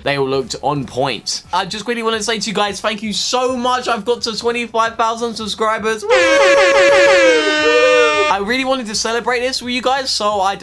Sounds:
inside a small room, truck horn, Speech

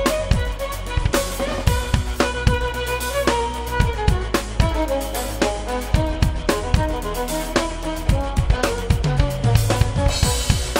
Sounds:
Music, Musical instrument

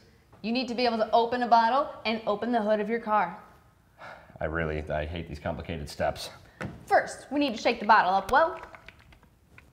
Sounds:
Speech

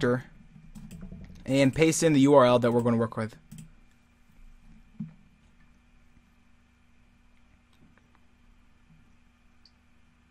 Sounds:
Speech

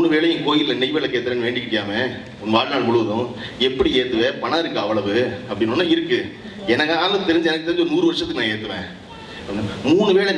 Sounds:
Speech, Male speech

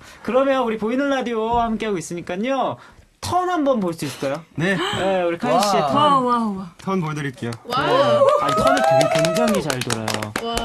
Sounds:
Speech

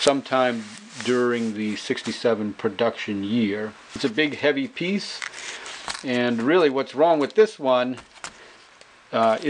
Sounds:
Speech

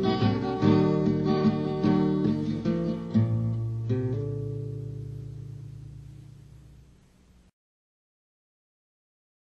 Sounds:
Bass guitar, Music

